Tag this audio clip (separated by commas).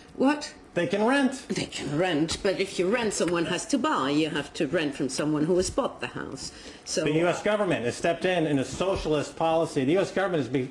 Speech